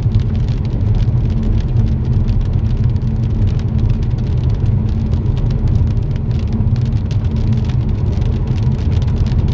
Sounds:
rain on surface

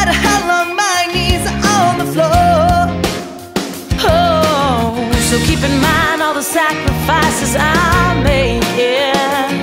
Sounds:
music

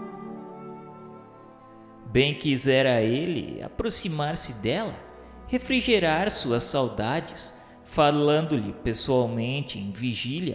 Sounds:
speech, music

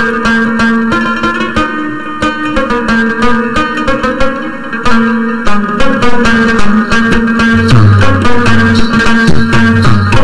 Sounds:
classical music, music, jazz

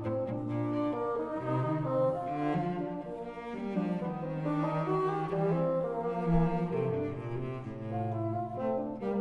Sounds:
playing cello, music, cello

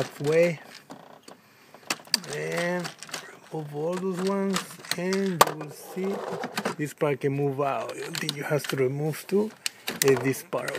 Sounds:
speech

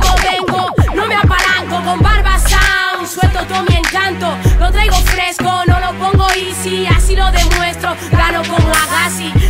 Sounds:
music

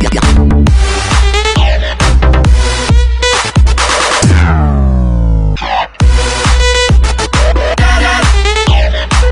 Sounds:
music

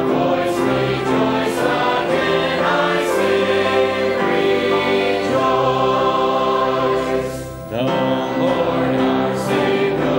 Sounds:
choir, music

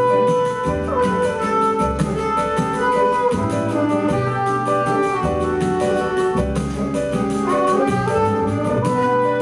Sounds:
orchestra, music

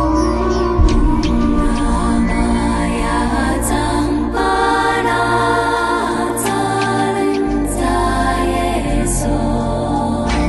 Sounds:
music, mantra

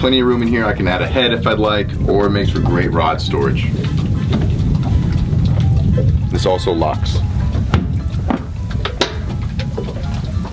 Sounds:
music, speech, inside a small room

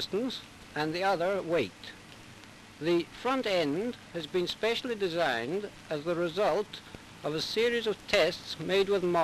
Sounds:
speech, speech synthesizer

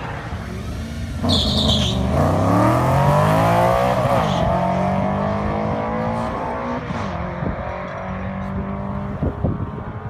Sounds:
car

